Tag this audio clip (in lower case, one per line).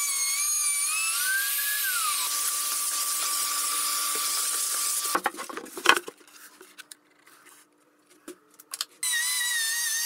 wood